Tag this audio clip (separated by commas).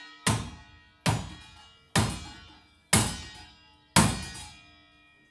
Tools